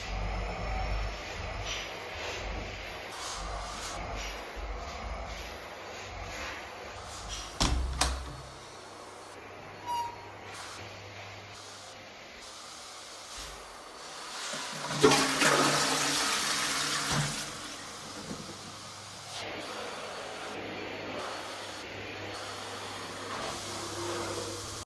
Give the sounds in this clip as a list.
vacuum cleaner, door, toilet flushing